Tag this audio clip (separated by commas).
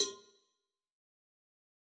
Bell, Cowbell